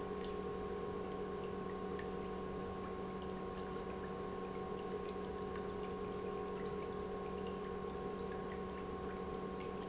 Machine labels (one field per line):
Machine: pump